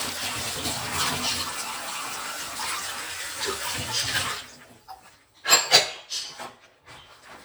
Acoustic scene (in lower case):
kitchen